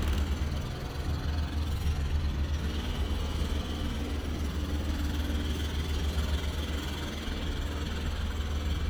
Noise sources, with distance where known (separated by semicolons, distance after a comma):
jackhammer, near